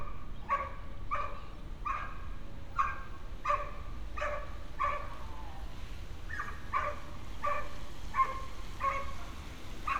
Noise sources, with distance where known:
dog barking or whining, near

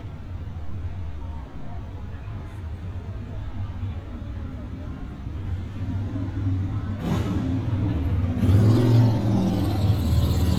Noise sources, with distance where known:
engine of unclear size, near

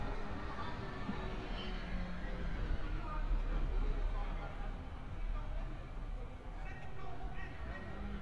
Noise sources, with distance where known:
background noise

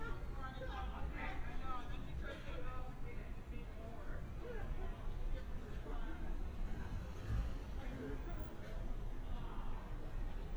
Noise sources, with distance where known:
person or small group talking

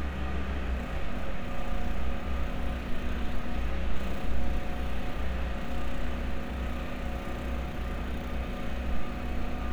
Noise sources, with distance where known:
engine of unclear size, near

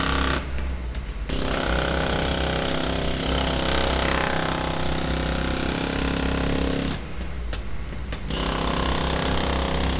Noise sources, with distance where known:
unidentified impact machinery, near

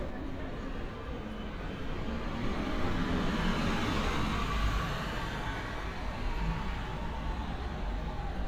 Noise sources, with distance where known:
engine of unclear size, near

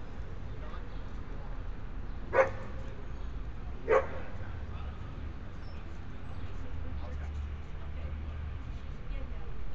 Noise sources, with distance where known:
person or small group talking, far; dog barking or whining, near

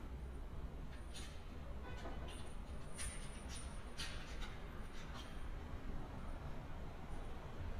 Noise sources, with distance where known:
car horn

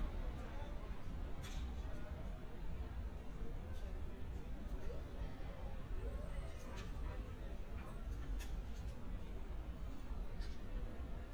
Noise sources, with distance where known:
person or small group talking

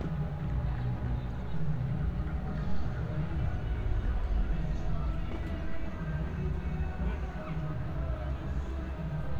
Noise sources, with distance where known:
music from an unclear source, far

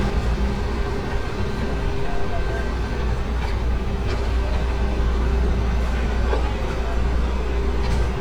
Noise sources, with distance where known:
large-sounding engine, near

